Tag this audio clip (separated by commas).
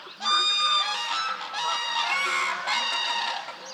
Fowl, Bird, Animal, livestock, Wild animals